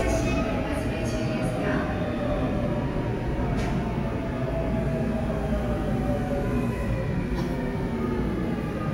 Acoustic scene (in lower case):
subway station